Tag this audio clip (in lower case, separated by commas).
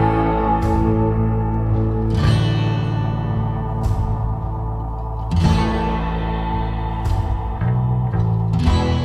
bass guitar, music